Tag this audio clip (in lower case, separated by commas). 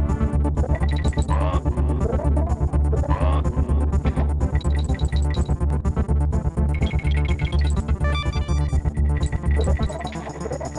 music